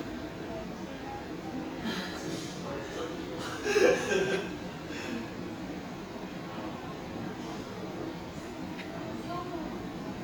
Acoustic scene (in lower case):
cafe